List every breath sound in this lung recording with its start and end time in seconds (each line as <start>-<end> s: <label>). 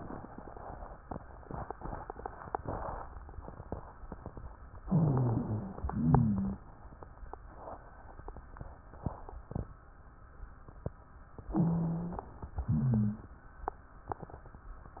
4.86-5.81 s: inhalation
4.86-5.81 s: rhonchi
5.84-6.66 s: exhalation
5.84-6.66 s: rhonchi
11.52-12.33 s: inhalation
11.52-12.33 s: rhonchi
12.66-13.30 s: exhalation
12.66-13.30 s: rhonchi